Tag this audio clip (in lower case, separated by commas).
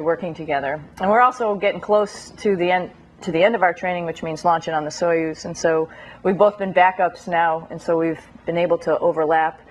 speech, inside a small room